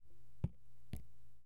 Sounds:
Raindrop, Drip, Water, Rain, Liquid

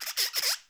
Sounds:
Squeak

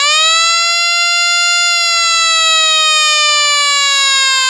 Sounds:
Alarm, Siren

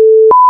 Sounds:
Alarm

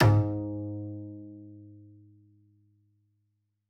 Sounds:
Music, Musical instrument, Bowed string instrument

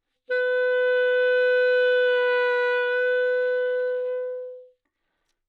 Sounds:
Wind instrument, Music, Musical instrument

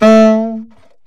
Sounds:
Music, Wind instrument, Musical instrument

